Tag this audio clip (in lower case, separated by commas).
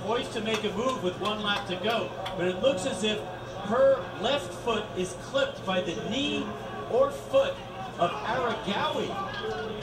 speech, inside a small room